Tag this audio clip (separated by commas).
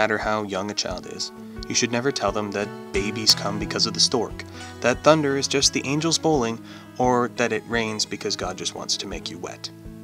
Speech, Music